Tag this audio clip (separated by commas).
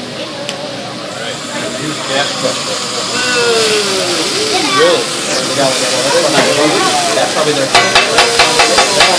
Speech